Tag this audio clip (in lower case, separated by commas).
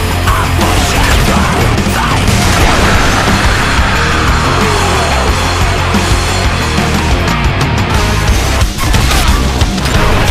music